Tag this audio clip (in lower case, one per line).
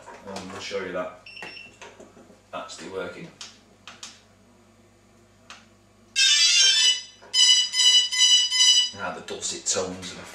speech
inside a small room